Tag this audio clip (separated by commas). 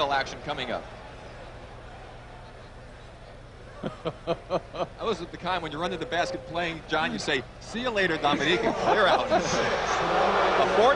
Speech